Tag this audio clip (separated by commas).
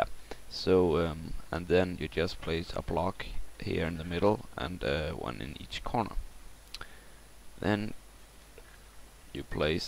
Speech